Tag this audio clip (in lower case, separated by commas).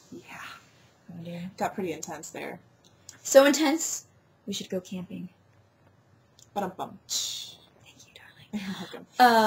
speech